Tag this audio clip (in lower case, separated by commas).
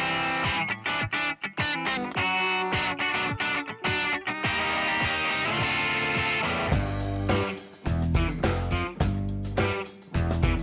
music